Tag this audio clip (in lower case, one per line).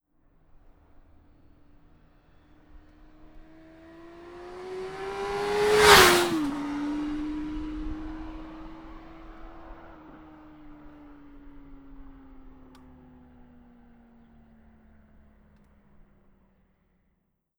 accelerating
engine
motorcycle
motor vehicle (road)
vehicle